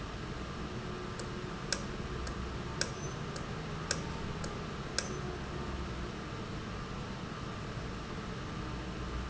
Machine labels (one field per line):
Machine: valve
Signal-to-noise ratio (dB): -6 dB